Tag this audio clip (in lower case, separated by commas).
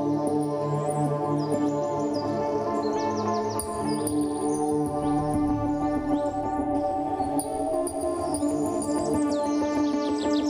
music, animal, bird